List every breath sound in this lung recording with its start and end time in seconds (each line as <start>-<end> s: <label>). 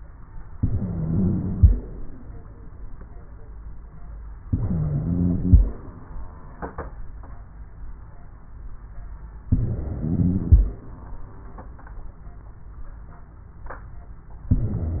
0.53-2.03 s: inhalation
0.53-2.03 s: wheeze
4.46-5.96 s: inhalation
4.46-5.96 s: wheeze
9.50-10.85 s: inhalation
9.50-10.85 s: wheeze
14.54-15.00 s: inhalation
14.54-15.00 s: wheeze